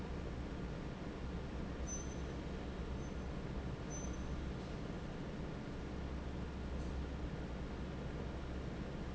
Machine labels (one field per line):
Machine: fan